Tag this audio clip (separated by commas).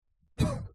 Respiratory sounds, Cough, Human voice